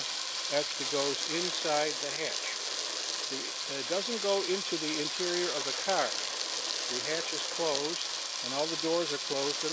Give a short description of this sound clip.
Sizzling and popping faint speech of a man